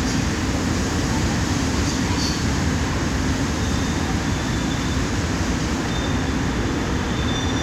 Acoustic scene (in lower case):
subway station